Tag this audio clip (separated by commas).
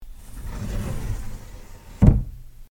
Sliding door, Wood, Slam, home sounds, Door